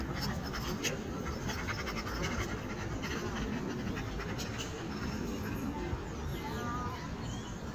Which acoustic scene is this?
park